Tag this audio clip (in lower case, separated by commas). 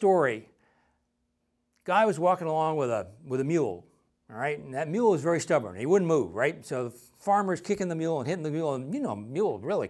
speech